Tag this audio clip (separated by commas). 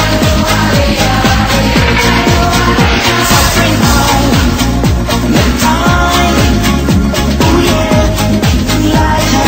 Music, Techno